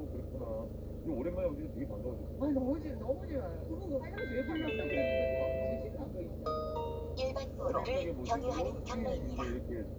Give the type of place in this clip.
car